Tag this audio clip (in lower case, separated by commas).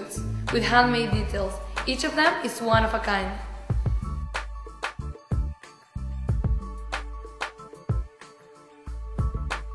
speech, music